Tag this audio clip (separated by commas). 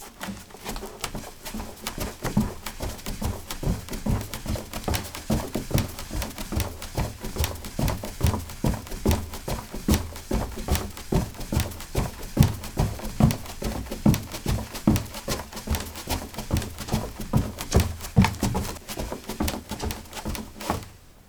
Run